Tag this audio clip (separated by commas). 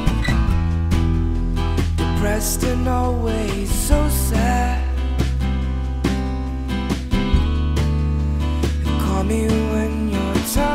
Music, Sad music